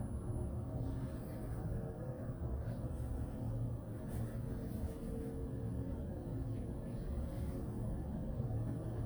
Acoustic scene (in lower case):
elevator